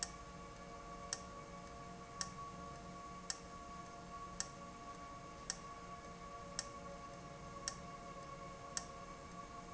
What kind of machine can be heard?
valve